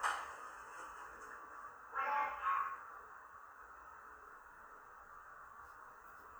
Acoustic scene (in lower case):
elevator